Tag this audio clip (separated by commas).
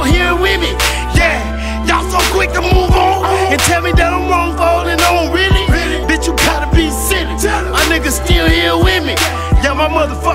Music, Rapping